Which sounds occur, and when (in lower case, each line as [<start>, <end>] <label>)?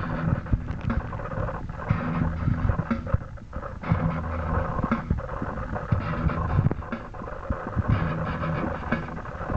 [0.00, 9.55] music
[0.00, 9.55] noise